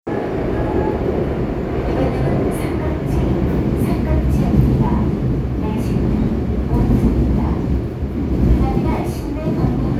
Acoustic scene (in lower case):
subway train